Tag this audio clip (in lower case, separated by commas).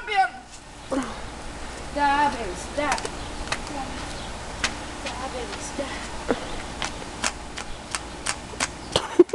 speech, animal